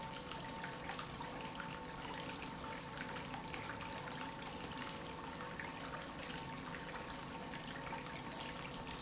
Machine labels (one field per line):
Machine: pump